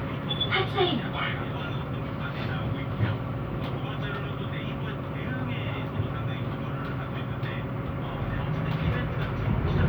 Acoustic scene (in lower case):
bus